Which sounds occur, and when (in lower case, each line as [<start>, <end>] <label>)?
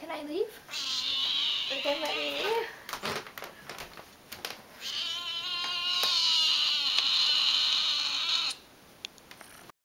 [0.00, 0.54] female speech
[0.00, 9.68] mechanisms
[0.69, 2.53] cat
[1.67, 2.66] female speech
[1.98, 2.10] generic impact sounds
[2.58, 2.85] breathing
[2.85, 3.48] cat
[3.66, 3.99] cat
[4.27, 4.56] cat
[4.80, 8.53] cat
[5.58, 5.65] tick
[5.97, 6.07] tick
[6.91, 7.00] tick
[8.98, 9.07] tick
[9.13, 9.46] generic impact sounds